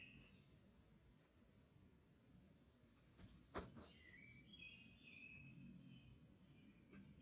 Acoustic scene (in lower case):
park